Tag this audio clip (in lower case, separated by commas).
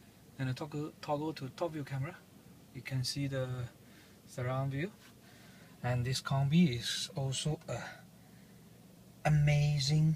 speech